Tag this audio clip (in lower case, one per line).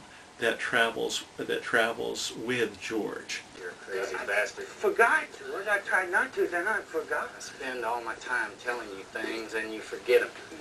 speech